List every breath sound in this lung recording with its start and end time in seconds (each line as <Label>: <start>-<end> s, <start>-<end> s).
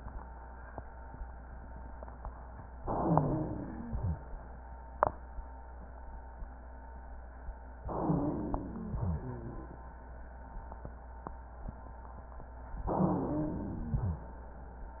Inhalation: 2.82-3.90 s, 7.76-8.92 s, 12.82-13.86 s
Exhalation: 3.92-4.42 s, 8.96-9.78 s, 13.90-14.38 s
Wheeze: 2.82-3.90 s, 7.76-8.92 s, 8.96-9.78 s, 12.82-13.86 s
Rhonchi: 3.92-4.42 s, 13.90-14.38 s